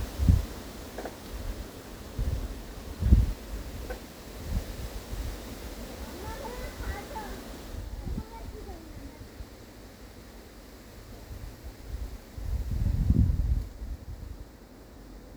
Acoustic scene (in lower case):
park